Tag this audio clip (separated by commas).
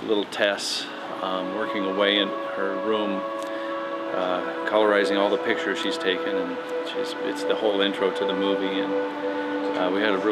Music, Narration, Speech, Male speech